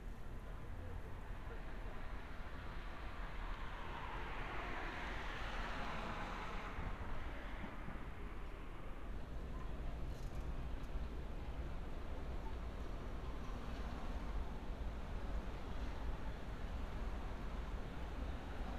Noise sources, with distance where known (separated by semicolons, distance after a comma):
background noise